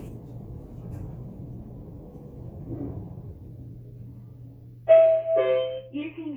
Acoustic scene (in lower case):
elevator